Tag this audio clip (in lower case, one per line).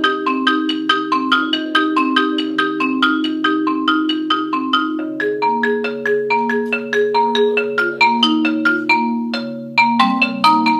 music
playing marimba
marimba